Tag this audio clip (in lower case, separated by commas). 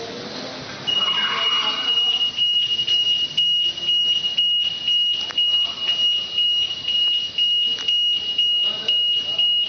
outside, urban or man-made, car, speech, vehicle